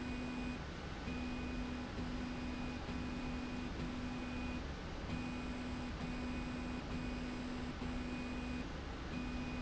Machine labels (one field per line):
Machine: slide rail